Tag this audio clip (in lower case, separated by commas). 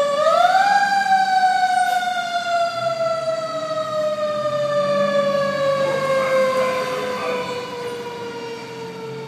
siren, fire truck (siren), emergency vehicle